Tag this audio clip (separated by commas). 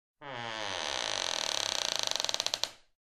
Creak